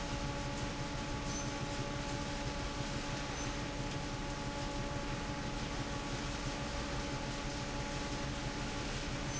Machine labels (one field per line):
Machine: fan